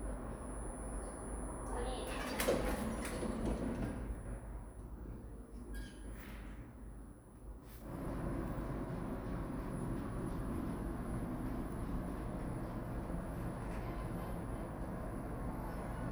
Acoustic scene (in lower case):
elevator